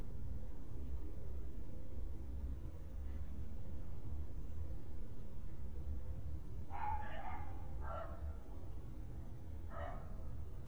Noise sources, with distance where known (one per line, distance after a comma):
dog barking or whining, far